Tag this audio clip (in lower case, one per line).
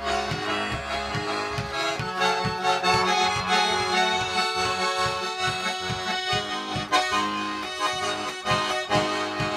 traditional music
accordion
playing accordion
musical instrument
music